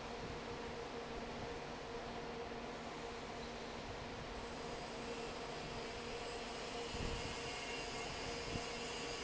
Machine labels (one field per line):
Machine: fan